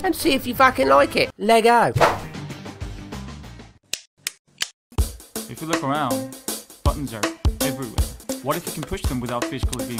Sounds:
Speech, Music

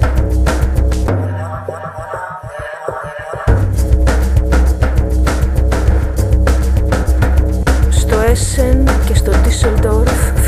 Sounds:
Music, Speech

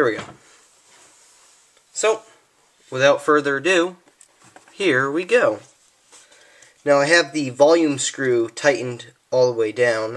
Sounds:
Speech

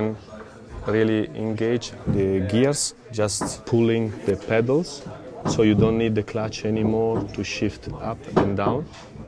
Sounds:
Speech

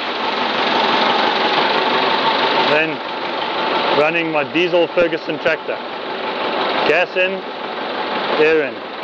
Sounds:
Speech

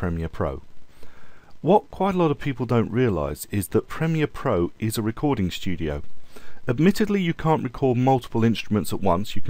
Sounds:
monologue, Speech

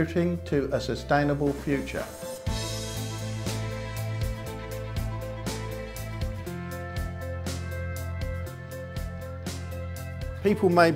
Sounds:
Music, Speech

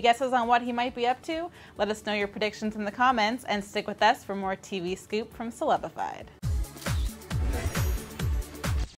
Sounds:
Speech, Music

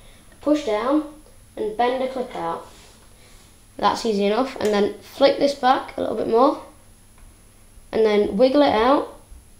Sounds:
Speech

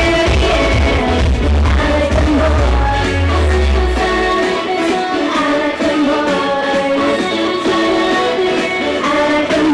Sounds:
Music, Vocal music

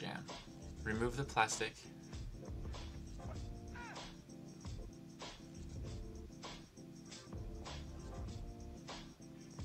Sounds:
Music, Speech

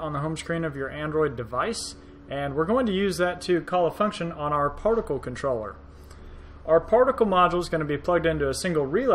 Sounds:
Speech

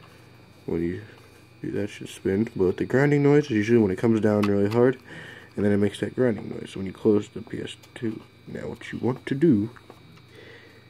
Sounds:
Speech

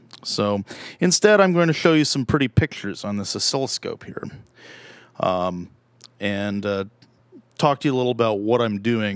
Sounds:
Speech

